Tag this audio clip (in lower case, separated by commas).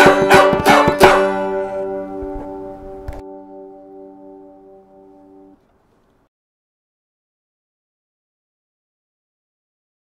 music